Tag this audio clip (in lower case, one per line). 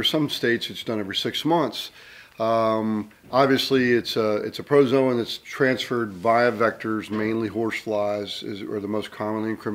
speech